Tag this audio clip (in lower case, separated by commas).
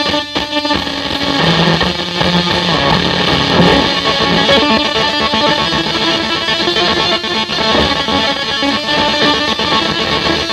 music, cacophony, effects unit, inside a small room, distortion, guitar